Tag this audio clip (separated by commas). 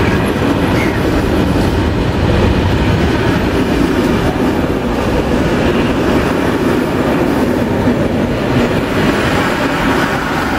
Train, Rail transport, Clickety-clack, Railroad car